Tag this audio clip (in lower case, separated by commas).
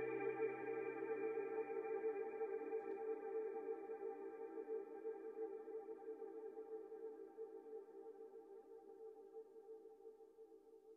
music, inside a small room